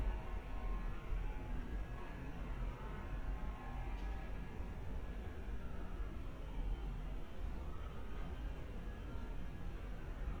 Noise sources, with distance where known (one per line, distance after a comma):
background noise